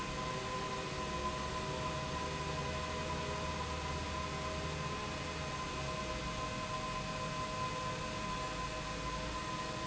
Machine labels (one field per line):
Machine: pump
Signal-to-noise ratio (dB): -6 dB